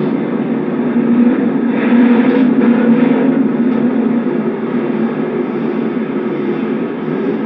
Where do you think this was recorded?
on a subway train